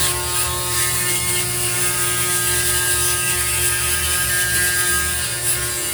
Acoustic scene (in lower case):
restroom